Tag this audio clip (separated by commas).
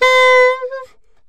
woodwind instrument, Music, Musical instrument